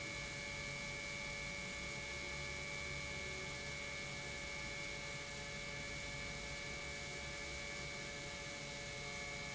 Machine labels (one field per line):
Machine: pump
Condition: normal